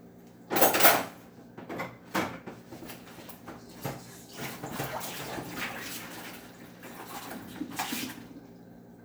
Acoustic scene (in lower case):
kitchen